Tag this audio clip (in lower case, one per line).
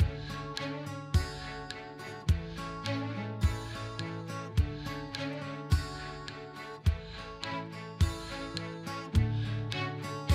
music